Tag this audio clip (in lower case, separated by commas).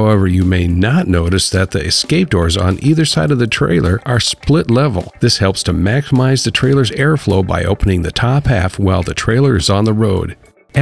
speech, music